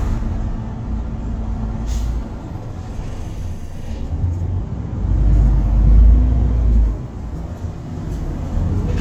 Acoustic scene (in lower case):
bus